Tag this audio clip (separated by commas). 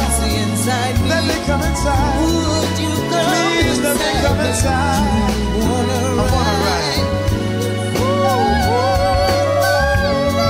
inside a large room or hall, Music, Singing